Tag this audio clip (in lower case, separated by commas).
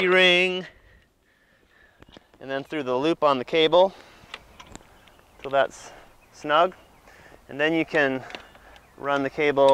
speech